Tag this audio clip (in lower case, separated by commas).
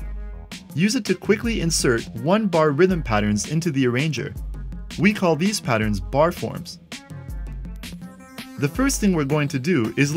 music, speech